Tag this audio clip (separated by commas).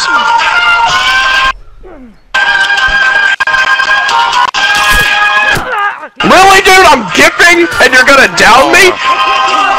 Music, Speech